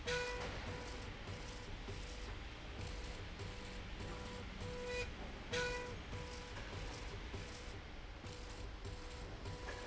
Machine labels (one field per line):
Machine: slide rail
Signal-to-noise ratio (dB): 6 dB